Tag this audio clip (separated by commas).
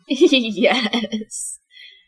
woman speaking, Human voice, Speech